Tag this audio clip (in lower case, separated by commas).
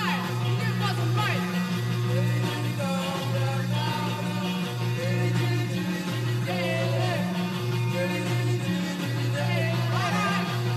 music, singing